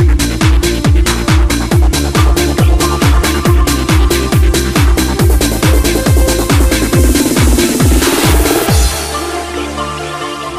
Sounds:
Music, Trance music

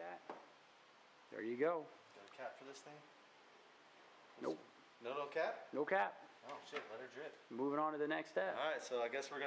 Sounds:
inside a small room, Speech

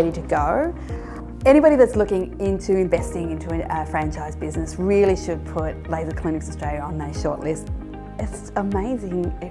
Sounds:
Speech, Music

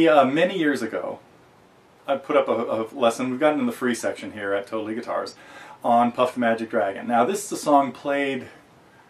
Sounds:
Speech

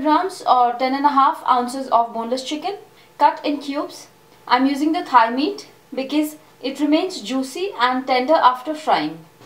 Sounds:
Speech

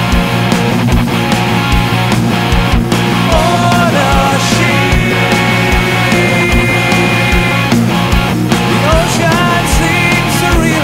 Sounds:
Rock music, Progressive rock, Music

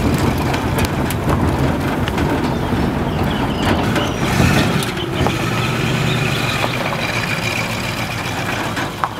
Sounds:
Frog

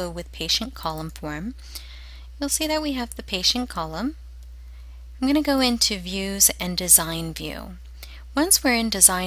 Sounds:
Speech

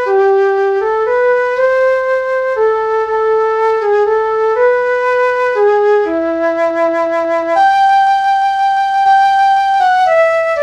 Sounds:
Music, Flute

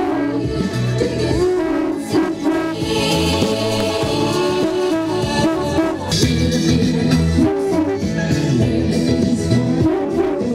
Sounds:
Music

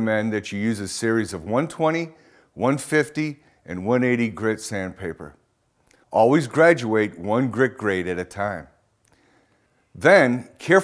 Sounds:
Speech

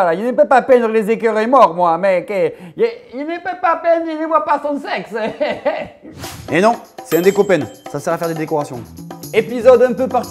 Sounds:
Music, Speech

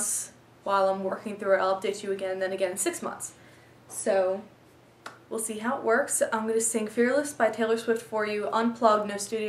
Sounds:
Speech

